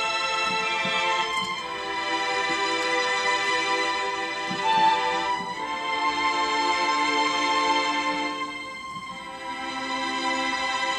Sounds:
Music, Musical instrument, fiddle

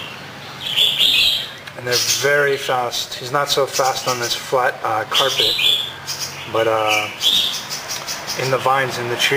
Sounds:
bird call, Bird

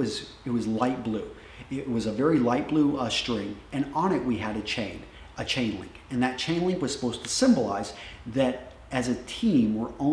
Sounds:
Speech, inside a small room

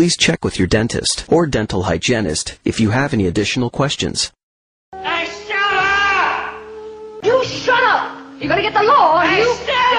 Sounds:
Speech, Music, Speech synthesizer

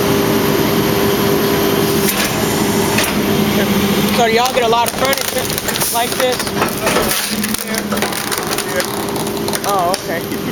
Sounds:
Speech

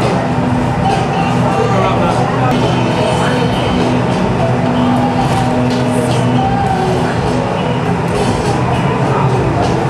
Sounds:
Speech, inside a public space, Music

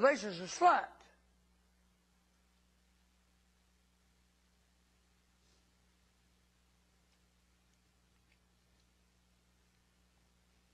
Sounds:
Speech

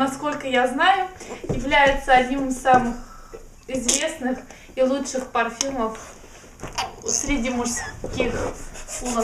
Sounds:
Speech

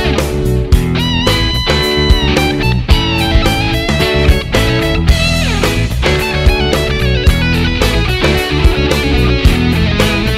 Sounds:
Guitar, Musical instrument, Bass guitar, Music, Strum, Plucked string instrument

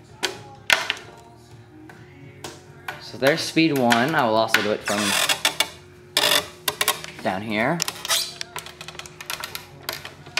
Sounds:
Music, Door, Speech

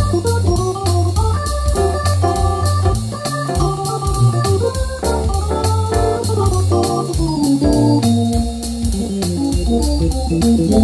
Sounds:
playing electronic organ

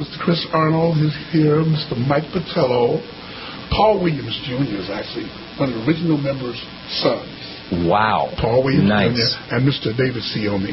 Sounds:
Speech

